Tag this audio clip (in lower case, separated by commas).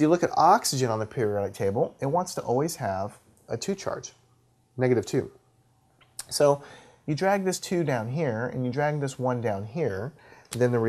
writing, speech